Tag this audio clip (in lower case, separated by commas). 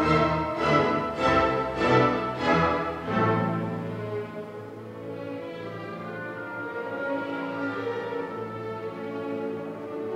musical instrument, violin, music